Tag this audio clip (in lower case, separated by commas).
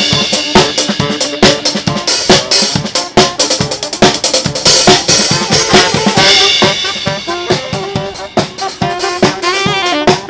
swoosh, music